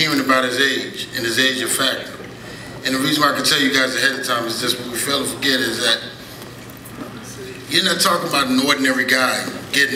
A man with a deep voice is giving a speech